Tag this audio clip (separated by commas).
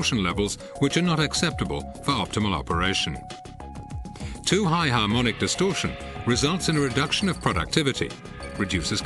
Speech, Music